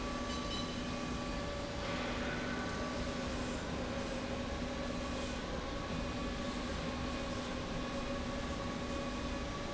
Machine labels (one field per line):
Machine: slide rail